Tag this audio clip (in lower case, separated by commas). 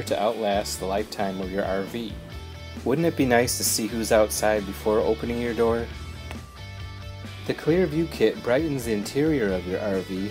speech, music